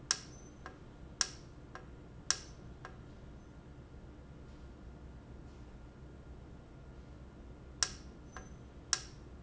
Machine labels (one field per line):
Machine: valve